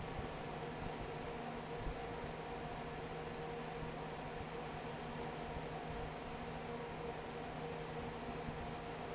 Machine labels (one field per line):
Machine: fan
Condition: normal